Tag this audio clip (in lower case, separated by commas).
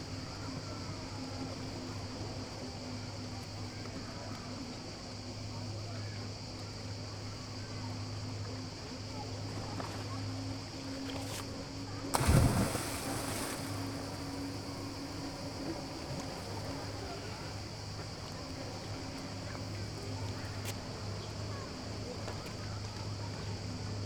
ocean, surf, cricket, insect, water, wild animals, animal